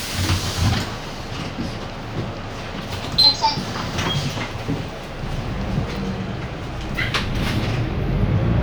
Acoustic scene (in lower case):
bus